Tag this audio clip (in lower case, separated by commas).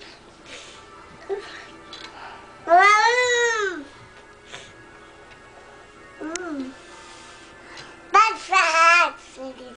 speech, music